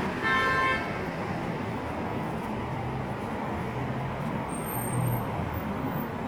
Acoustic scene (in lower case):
street